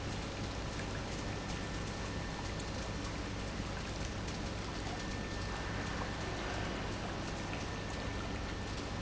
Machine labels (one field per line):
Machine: pump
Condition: normal